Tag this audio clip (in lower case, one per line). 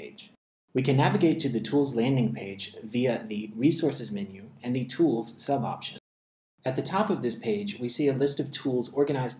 speech